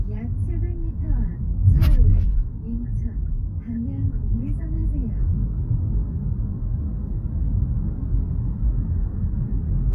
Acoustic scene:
car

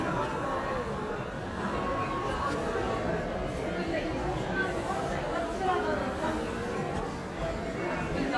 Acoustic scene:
crowded indoor space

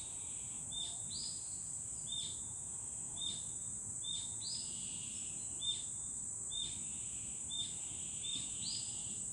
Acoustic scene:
park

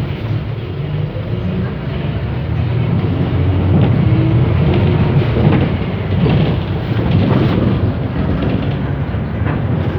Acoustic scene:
bus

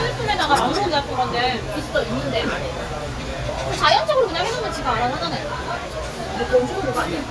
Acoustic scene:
restaurant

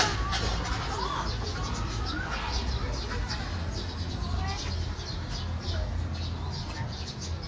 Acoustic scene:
park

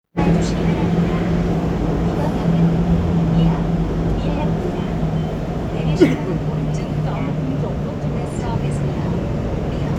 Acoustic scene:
subway train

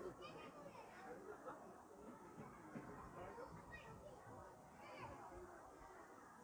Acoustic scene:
park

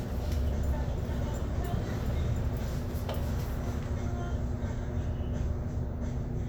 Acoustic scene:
bus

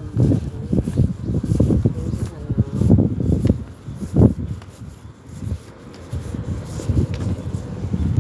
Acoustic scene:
residential area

